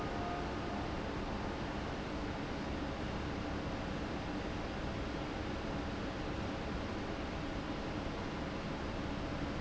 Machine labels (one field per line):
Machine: fan